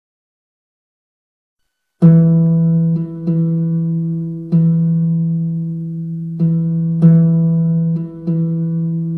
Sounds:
music

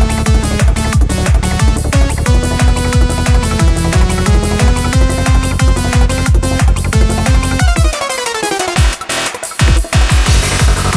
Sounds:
music

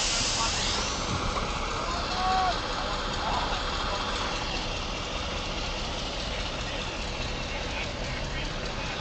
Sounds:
speech
truck
vehicle

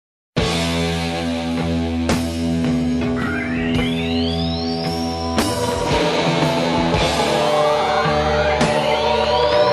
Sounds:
punk rock

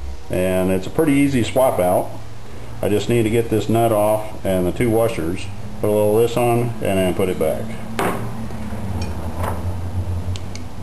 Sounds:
speech

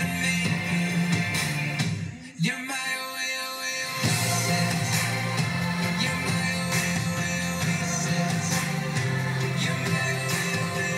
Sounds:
music

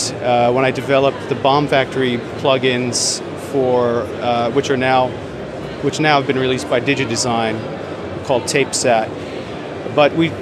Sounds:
speech

